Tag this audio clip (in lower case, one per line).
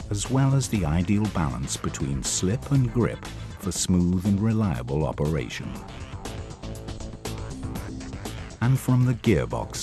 speech
music